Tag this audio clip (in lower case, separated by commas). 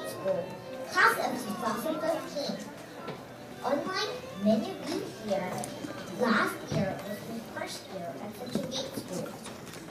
child speech, narration, speech